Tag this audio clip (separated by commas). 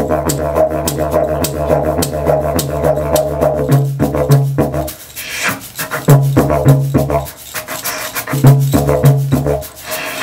Wind instrument, Musical instrument, Music, Didgeridoo